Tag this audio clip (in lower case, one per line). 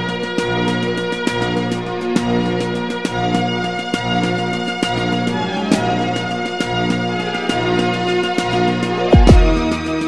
music